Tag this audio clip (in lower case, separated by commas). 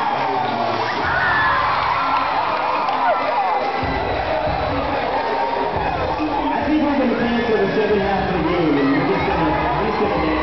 crowd, speech